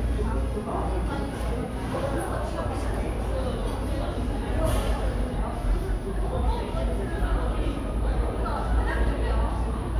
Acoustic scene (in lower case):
cafe